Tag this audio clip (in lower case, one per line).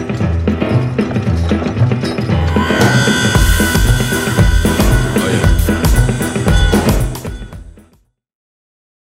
music